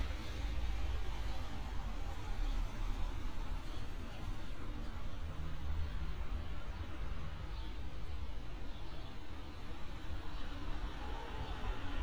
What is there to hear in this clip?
medium-sounding engine